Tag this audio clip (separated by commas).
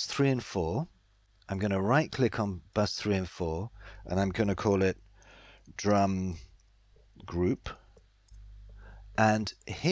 Speech